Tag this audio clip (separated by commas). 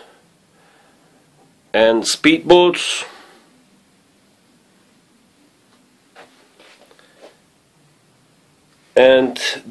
Speech